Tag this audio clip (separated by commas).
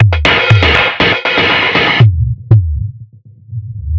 Drum kit, Music, Percussion, Musical instrument